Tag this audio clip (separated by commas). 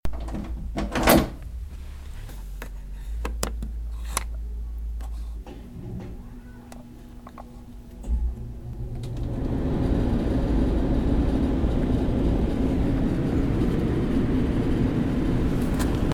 Mechanical fan, Mechanisms